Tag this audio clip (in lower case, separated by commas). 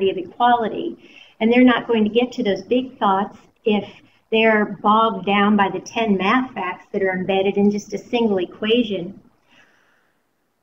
speech